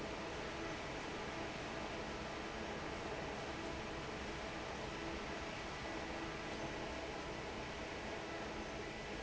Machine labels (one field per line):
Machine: fan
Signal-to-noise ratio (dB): 6 dB